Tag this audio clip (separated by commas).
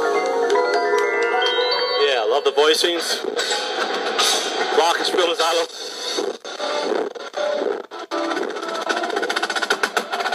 Speech, Drum, Music